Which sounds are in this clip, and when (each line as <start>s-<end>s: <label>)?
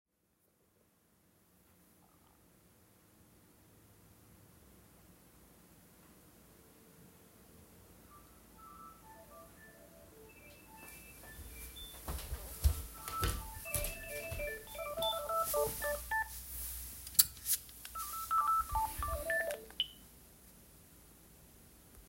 7.9s-20.3s: phone ringing
11.5s-15.4s: footsteps